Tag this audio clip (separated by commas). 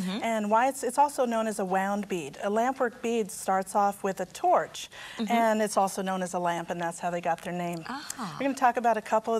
Speech